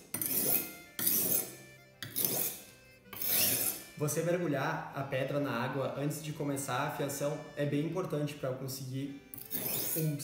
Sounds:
sharpen knife

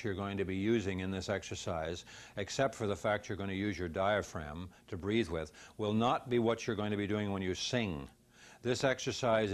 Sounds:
Speech

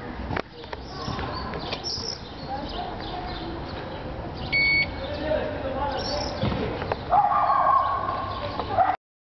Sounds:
Speech

